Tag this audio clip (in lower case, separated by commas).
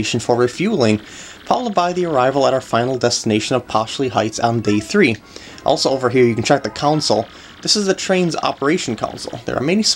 speech